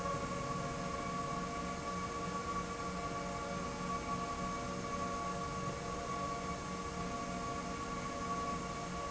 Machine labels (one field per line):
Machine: slide rail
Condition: normal